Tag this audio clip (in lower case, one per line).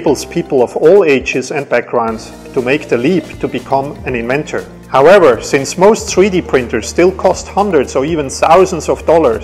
music
speech